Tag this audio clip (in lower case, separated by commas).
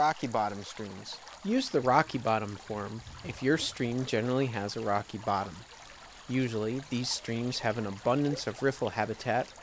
stream